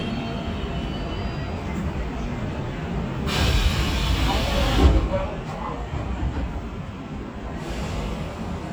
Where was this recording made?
on a subway train